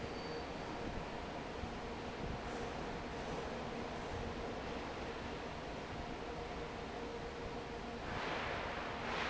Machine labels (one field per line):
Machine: fan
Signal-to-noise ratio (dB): 0 dB